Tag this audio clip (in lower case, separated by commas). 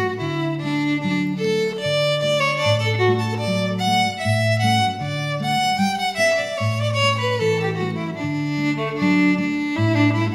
musical instrument, music